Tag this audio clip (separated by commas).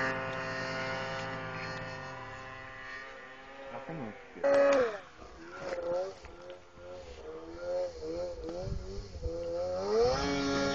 Speech